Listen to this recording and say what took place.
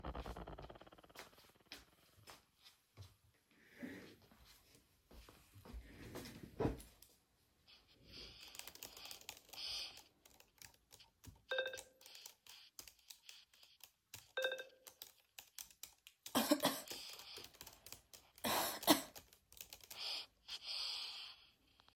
i pull the chair to sit down and starts typing on my laptop, during which i get pop up notifications and i cough